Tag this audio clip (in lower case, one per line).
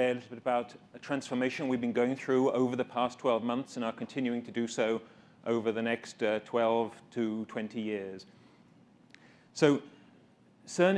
speech